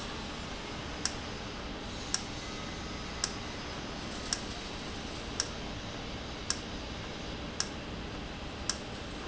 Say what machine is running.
valve